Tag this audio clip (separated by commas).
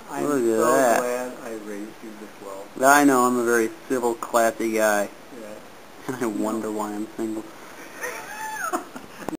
Speech